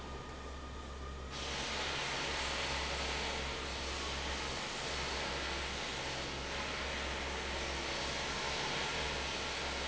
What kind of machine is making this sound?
fan